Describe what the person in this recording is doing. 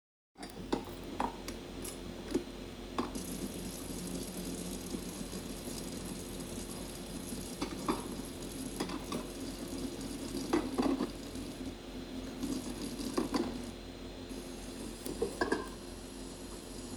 i was washing my dishes